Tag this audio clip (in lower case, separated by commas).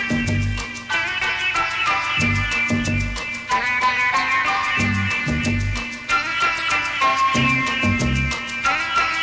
playing sitar